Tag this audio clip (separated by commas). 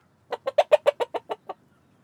Fowl, Animal, rooster, livestock